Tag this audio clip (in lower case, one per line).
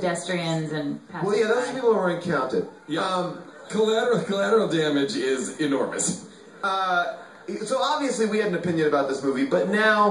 speech